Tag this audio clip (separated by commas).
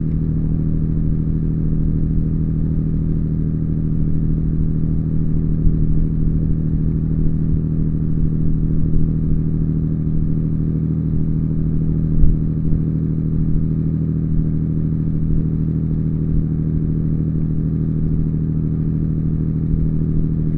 Vehicle, Boat